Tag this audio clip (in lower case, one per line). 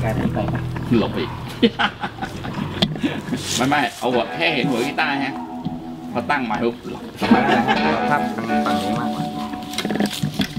speech
musical instrument
music
plucked string instrument
guitar